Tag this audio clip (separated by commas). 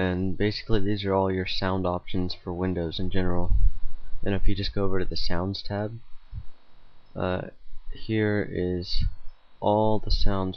Speech